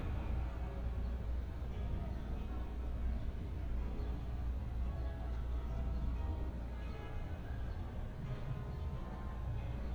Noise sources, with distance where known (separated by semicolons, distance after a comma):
music from an unclear source